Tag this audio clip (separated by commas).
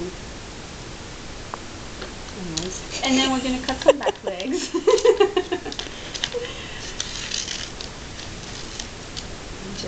Speech